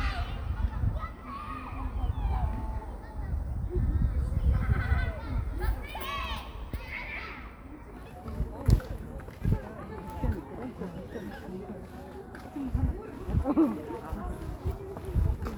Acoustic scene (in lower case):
park